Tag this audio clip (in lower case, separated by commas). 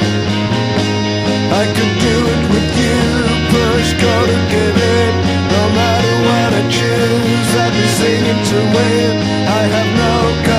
music